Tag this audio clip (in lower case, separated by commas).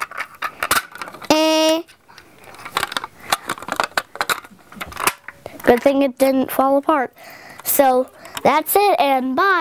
speech